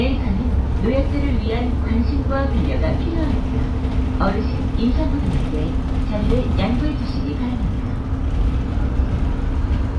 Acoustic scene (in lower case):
bus